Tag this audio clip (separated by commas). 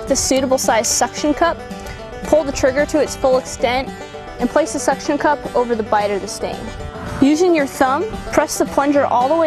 Speech, Music